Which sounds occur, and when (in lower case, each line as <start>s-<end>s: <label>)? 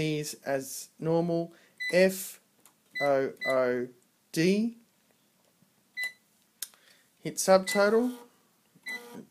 0.0s-9.3s: background noise
6.6s-6.8s: clicking
6.7s-7.1s: breathing